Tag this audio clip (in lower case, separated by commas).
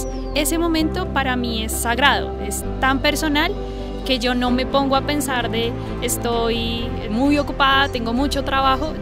speech, music